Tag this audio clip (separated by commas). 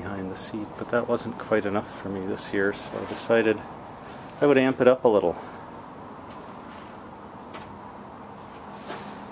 Speech